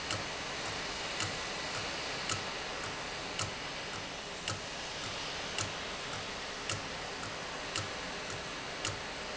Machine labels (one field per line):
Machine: valve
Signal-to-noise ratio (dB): -6 dB